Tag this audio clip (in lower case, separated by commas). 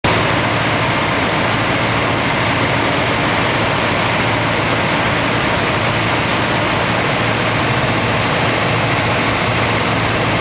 aircraft, vehicle